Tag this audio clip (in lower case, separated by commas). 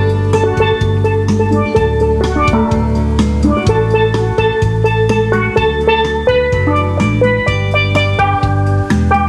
music, outside, urban or man-made, steelpan